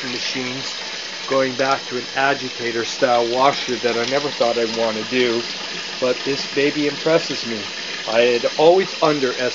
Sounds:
speech, water

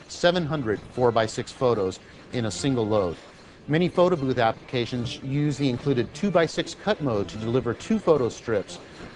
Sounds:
speech

